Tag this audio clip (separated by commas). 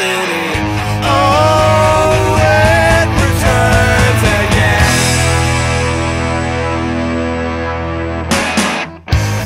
Music